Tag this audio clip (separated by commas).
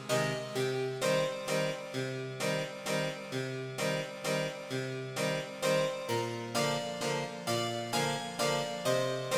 Harpsichord, Keyboard (musical)